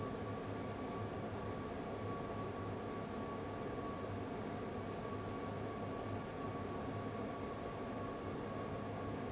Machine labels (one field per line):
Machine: fan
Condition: abnormal